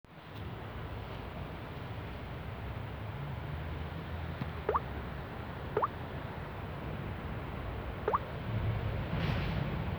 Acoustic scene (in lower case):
residential area